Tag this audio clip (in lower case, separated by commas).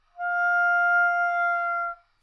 musical instrument, music, woodwind instrument